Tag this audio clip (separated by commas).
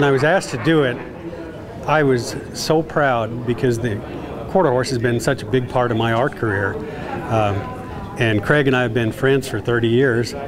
Speech